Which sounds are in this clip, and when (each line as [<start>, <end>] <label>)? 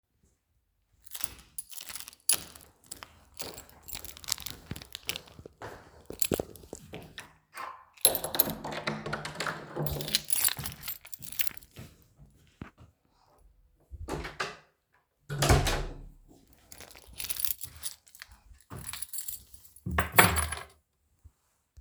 [1.03, 5.39] keys
[2.21, 7.94] footsteps
[6.13, 7.41] keys
[7.97, 11.66] keys
[8.04, 10.62] door
[11.79, 12.97] footsteps
[13.92, 16.15] door
[16.73, 20.73] keys